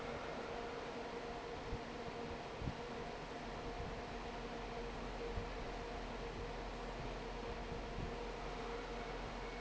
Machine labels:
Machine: fan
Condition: normal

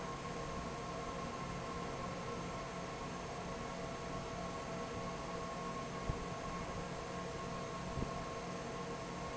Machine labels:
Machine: fan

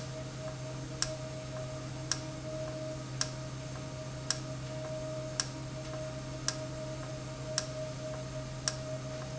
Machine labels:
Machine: valve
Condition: normal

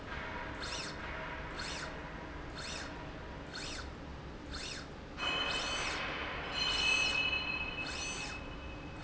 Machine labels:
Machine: slide rail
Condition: normal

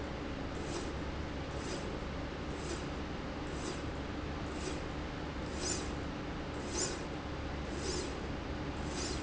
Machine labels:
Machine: slide rail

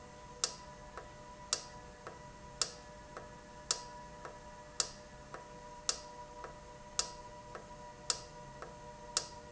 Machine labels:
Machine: valve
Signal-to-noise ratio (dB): 6 dB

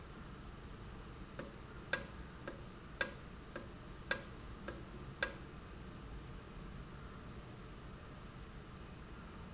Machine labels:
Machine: valve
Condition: normal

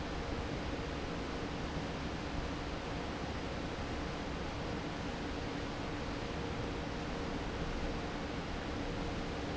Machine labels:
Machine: fan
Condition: normal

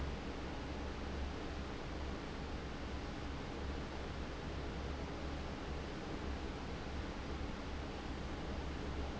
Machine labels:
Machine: fan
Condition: abnormal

